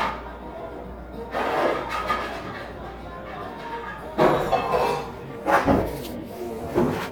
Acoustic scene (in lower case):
cafe